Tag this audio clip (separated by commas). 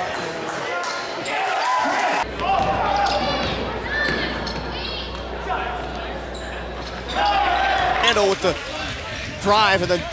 Basketball bounce, Speech